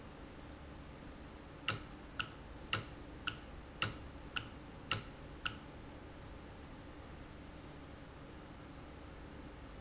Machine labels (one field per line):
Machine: valve